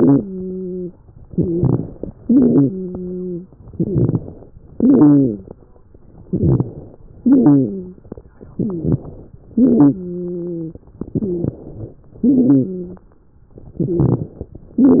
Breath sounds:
0.00-0.93 s: wheeze
1.23-2.11 s: inhalation
1.23-2.11 s: wheeze
2.22-2.75 s: exhalation
2.22-3.46 s: wheeze
3.68-4.55 s: inhalation
3.68-4.55 s: crackles
4.73-5.60 s: exhalation
4.73-5.60 s: wheeze
6.28-7.04 s: inhalation
6.28-7.04 s: crackles
7.21-7.99 s: exhalation
7.21-7.99 s: wheeze
8.52-9.07 s: rhonchi
8.52-9.30 s: inhalation
9.58-10.85 s: wheeze
9.62-10.04 s: exhalation
11.04-11.99 s: inhalation
11.04-11.99 s: crackles
12.22-13.17 s: exhalation
12.22-13.17 s: wheeze
13.79-14.74 s: inhalation
13.79-14.74 s: crackles

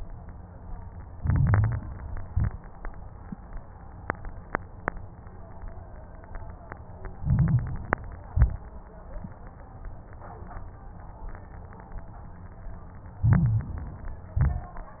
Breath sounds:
1.10-2.01 s: inhalation
1.10-2.01 s: crackles
2.15-2.63 s: exhalation
2.15-2.63 s: crackles
7.20-8.00 s: inhalation
7.20-8.00 s: crackles
8.23-8.71 s: exhalation
8.23-8.71 s: crackles
13.26-14.06 s: inhalation
13.26-14.06 s: crackles
14.31-15.00 s: exhalation
14.31-15.00 s: crackles

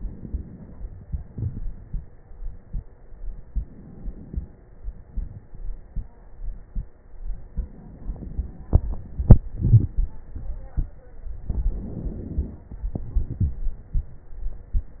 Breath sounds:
3.06-4.65 s: inhalation
4.65-5.95 s: exhalation
4.65-5.95 s: crackles
7.44-9.39 s: inhalation
7.44-9.39 s: crackles
9.40-10.32 s: exhalation
9.40-10.32 s: crackles
11.44-12.88 s: inhalation
12.86-15.00 s: exhalation
12.86-15.00 s: crackles

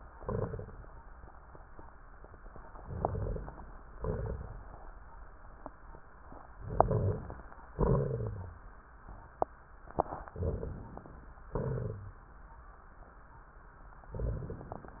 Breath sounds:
0.16-0.86 s: exhalation
0.16-0.86 s: crackles
2.81-3.52 s: inhalation
2.81-3.52 s: crackles
3.96-4.66 s: exhalation
3.96-4.66 s: crackles
6.67-7.38 s: inhalation
6.67-7.38 s: crackles
7.76-8.64 s: exhalation
7.76-8.64 s: crackles
10.37-11.02 s: inhalation
10.37-11.02 s: crackles
11.52-12.02 s: exhalation
11.52-12.02 s: crackles
14.13-14.96 s: inhalation
14.13-14.96 s: crackles

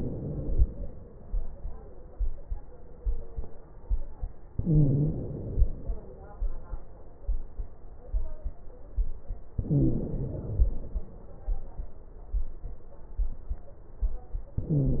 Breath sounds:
0.00-0.51 s: wheeze
0.00-1.12 s: inhalation
4.60-5.11 s: wheeze
4.60-5.75 s: inhalation
9.56-10.22 s: wheeze
9.56-11.00 s: inhalation
14.60-15.00 s: inhalation
14.60-15.00 s: wheeze

